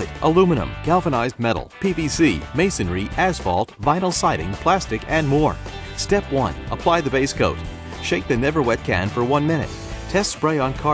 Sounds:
Speech, Music

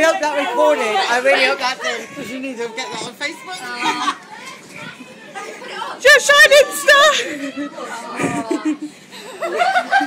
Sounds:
Speech, chortle

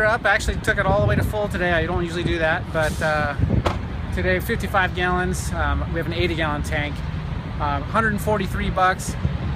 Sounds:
outside, urban or man-made, Vehicle, Speech

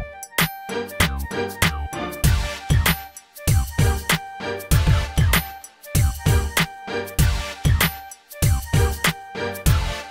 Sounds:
Music

